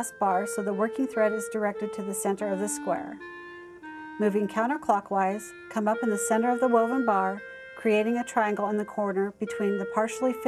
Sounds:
music, speech

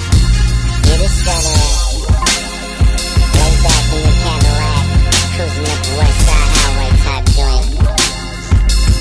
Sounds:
pop music, music

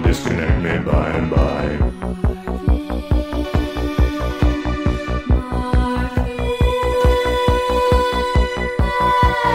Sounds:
sound effect

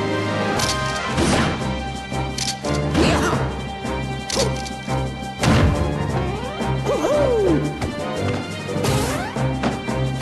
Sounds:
music

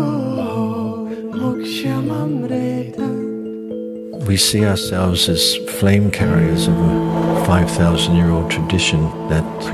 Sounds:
speech, music

